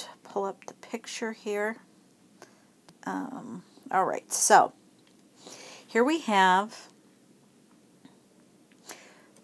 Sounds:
Speech

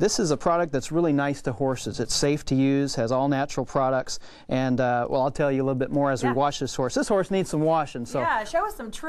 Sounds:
Speech

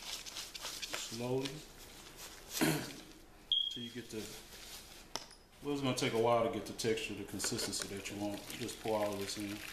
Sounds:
Speech

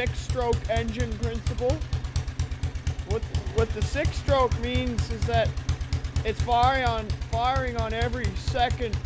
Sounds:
Speech, Medium engine (mid frequency), Engine

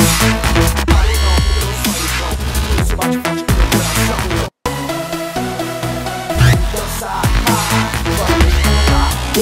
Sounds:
Dubstep, Electronic music, Music

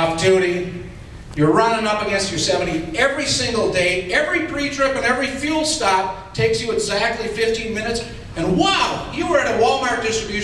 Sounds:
Speech

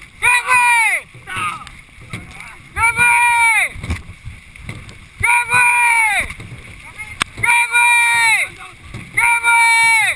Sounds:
Speech

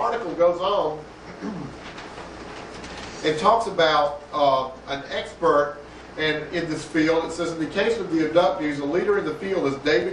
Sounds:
Speech

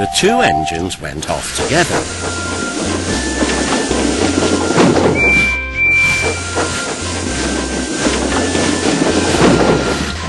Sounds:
Speech, train wagon, Music

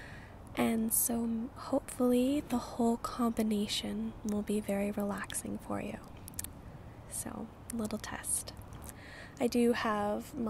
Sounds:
Speech

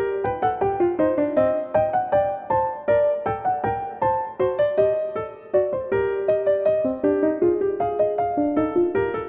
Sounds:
Music

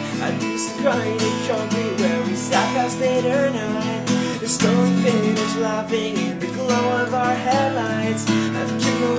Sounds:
Strum, Music, Musical instrument, Acoustic guitar, Guitar, playing acoustic guitar, Plucked string instrument

